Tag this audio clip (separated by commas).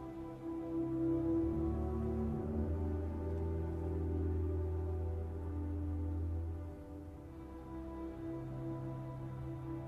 Music